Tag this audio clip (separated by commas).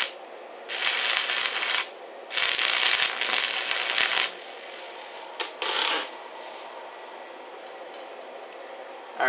arc welding